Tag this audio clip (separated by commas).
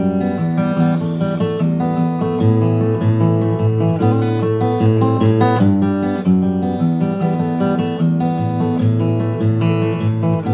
Musical instrument, Plucked string instrument, Music, Strum, Guitar